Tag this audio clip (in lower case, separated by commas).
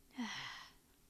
sigh, human voice